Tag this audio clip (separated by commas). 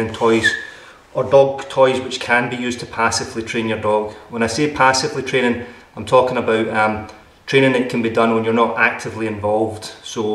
Speech